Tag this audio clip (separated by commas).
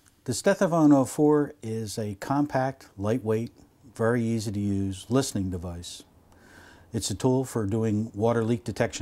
Speech